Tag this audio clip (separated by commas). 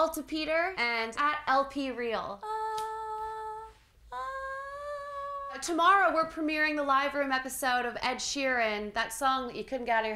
Speech